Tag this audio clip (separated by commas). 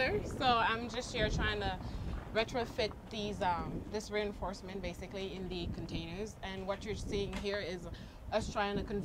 Speech